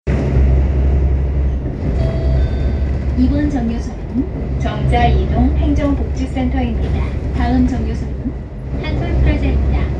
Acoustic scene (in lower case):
bus